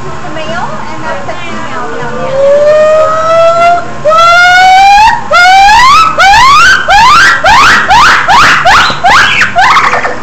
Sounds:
gibbon howling

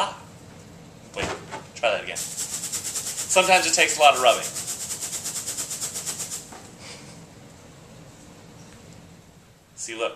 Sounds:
speech

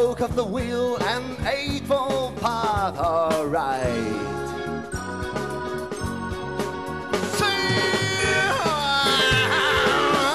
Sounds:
rock music
music

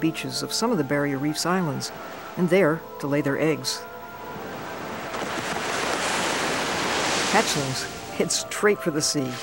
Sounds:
ocean

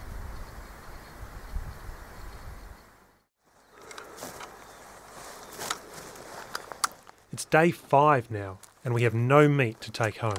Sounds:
speech

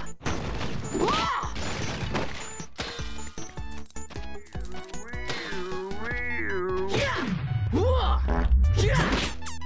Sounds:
thwack

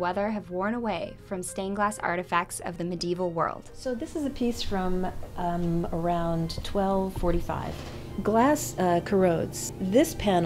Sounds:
speech
music

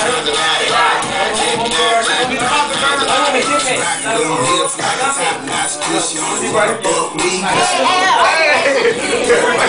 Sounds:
music
speech

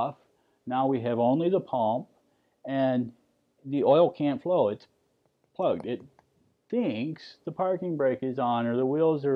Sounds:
speech

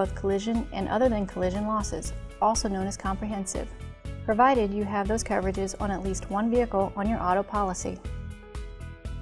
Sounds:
music
speech

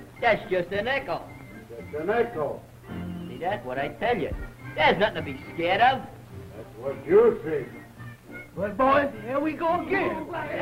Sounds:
music
speech

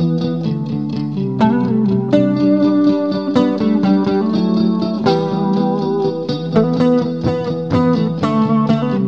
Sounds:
musical instrument
playing electric guitar
music
electric guitar
plucked string instrument

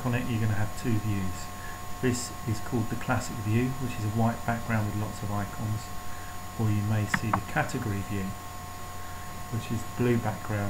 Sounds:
speech

